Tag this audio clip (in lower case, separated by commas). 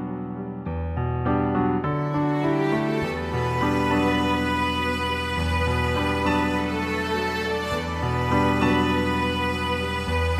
guitar, music, bowed string instrument